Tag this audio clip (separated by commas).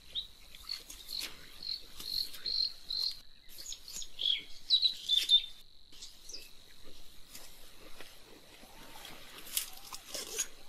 bird chirping, bird call, Bird, Chirp